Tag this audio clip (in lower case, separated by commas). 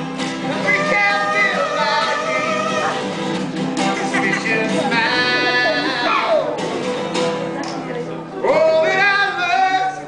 music, male singing, speech